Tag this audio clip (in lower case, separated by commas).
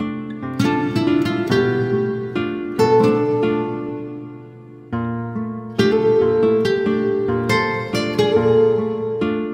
plucked string instrument, guitar, acoustic guitar, music, musical instrument, electric guitar, strum